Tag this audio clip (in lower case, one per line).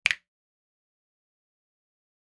finger snapping
hands